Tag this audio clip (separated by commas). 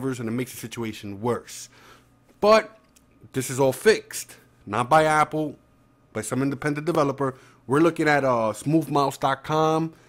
Speech